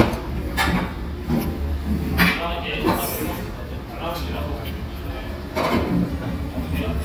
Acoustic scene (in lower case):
restaurant